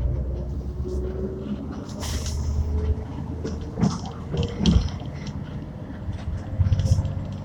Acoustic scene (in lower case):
bus